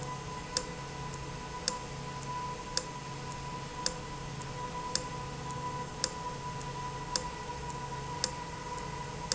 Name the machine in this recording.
valve